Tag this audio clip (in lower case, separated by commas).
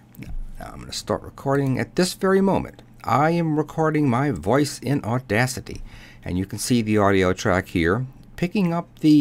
speech